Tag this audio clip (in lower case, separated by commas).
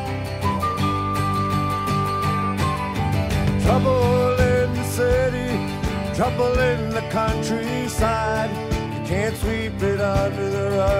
music